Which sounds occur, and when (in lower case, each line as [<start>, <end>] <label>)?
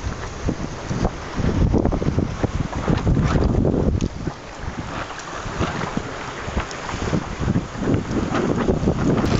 [0.00, 9.35] waves
[0.40, 1.05] wind noise (microphone)
[1.28, 4.26] wind noise (microphone)
[4.56, 5.04] wind noise (microphone)
[5.34, 6.09] wind noise (microphone)
[6.46, 9.35] wind noise (microphone)